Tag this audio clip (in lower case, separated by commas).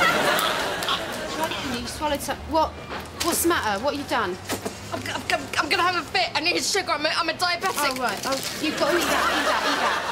speech